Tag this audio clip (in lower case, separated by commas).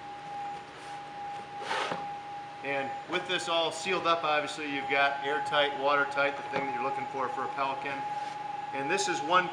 speech